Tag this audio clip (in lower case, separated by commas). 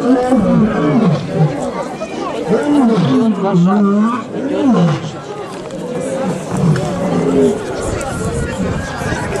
lions roaring